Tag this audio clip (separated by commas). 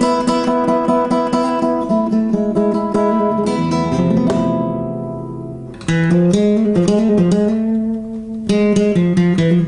Music